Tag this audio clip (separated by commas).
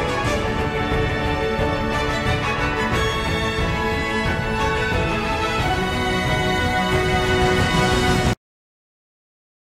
Music